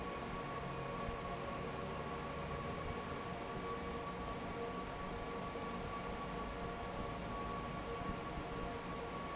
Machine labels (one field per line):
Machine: fan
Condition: normal